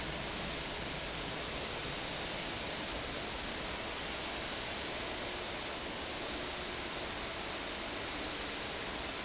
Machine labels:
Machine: fan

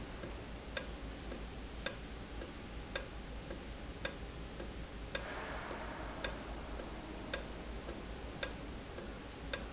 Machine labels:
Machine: valve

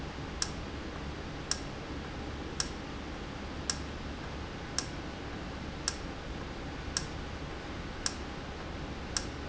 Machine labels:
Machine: valve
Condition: normal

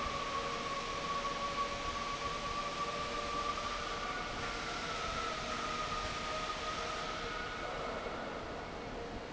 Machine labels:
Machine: fan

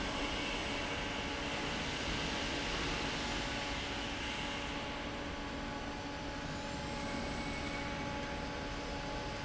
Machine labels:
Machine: fan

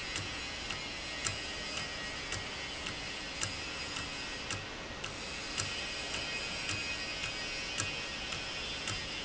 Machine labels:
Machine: valve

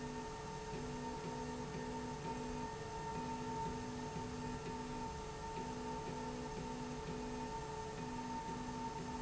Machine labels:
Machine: slide rail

